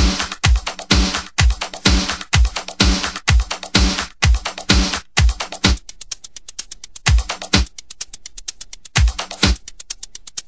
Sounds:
Music, Pop music

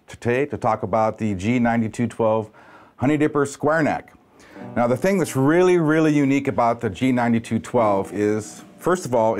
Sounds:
Speech, Music, Guitar

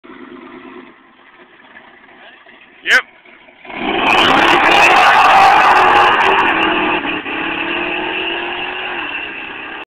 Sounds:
Vehicle, Speech, Car

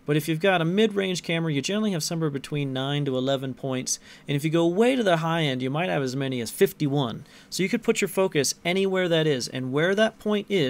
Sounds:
Speech

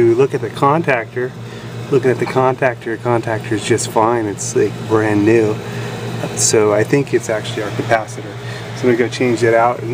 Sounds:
Speech

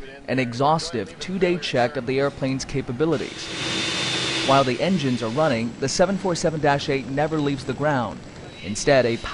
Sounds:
Speech

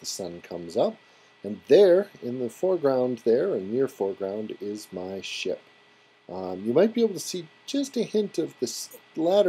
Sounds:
Speech

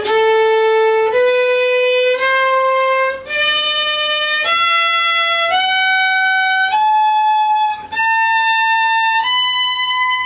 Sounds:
Bowed string instrument, Violin

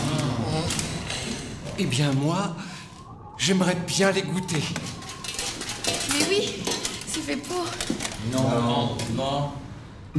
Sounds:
inside a large room or hall, Speech

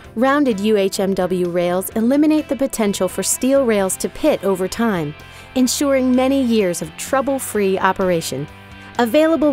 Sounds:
Music, Speech

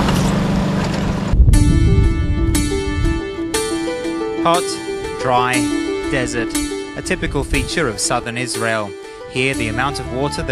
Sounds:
Music, Speech

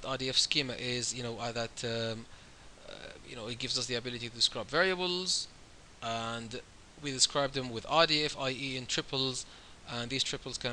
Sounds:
Speech

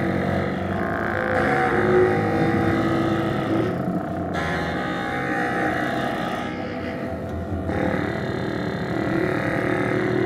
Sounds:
Trombone, Musical instrument, Music, Brass instrument

